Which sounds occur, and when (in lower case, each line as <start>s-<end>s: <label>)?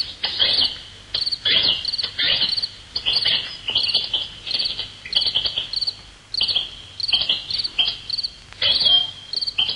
0.0s-9.7s: background noise
0.2s-0.9s: bird call
0.4s-0.7s: cricket
1.1s-1.4s: cricket
1.4s-1.8s: bird call
1.8s-2.1s: cricket
2.1s-2.5s: bird call
2.4s-2.7s: cricket
2.9s-3.5s: bird call
3.0s-3.3s: cricket
3.7s-4.3s: bird call
3.7s-4.1s: cricket
4.4s-4.9s: bird call
4.5s-4.7s: cricket
5.1s-5.7s: bird call
5.1s-5.4s: cricket
5.7s-5.9s: cricket
6.3s-6.6s: cricket
6.3s-6.6s: bird call
7.0s-7.2s: cricket
7.0s-7.4s: bird call
7.5s-7.7s: cricket
7.8s-8.0s: bird call
8.1s-8.3s: cricket
8.5s-9.1s: bird call
8.7s-9.0s: cricket
9.3s-9.5s: cricket